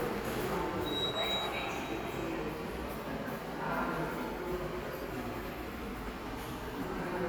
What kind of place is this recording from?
subway station